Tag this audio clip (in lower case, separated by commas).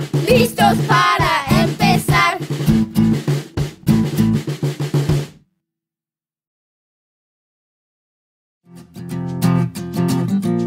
music